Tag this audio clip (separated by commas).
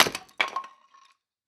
Wood